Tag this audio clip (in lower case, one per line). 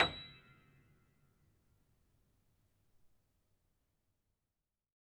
music
piano
keyboard (musical)
musical instrument